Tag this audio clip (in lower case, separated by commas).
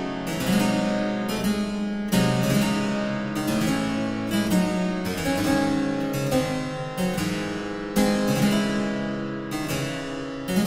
keyboard (musical), piano